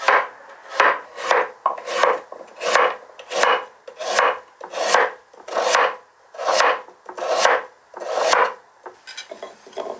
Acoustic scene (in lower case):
kitchen